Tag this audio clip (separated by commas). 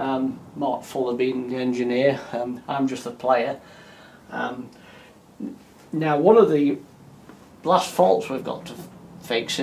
Speech